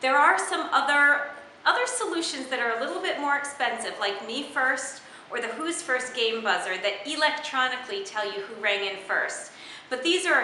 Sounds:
Speech

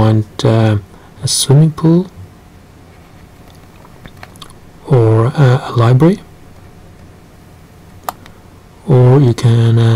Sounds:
Speech

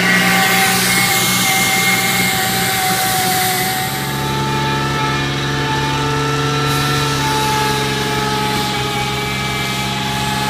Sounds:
Truck, Vehicle

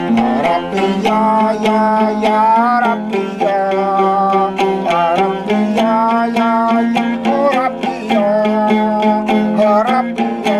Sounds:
Music

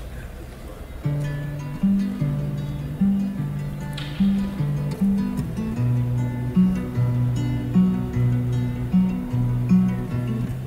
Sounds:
Music

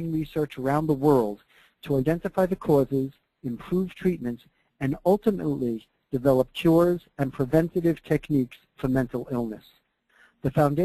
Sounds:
Speech

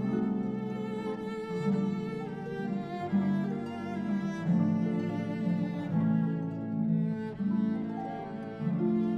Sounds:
Cello, Bowed string instrument, Harp, Classical music, Musical instrument, Music

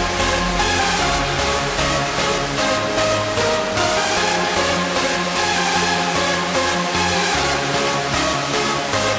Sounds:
Music, Funk

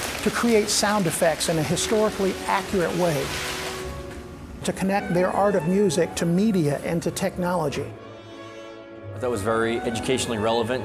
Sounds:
Speech, Music

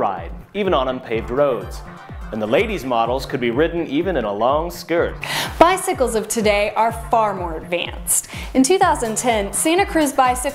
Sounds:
Speech, Music

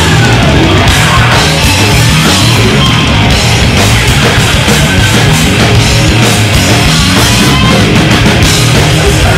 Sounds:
Dance music, Music

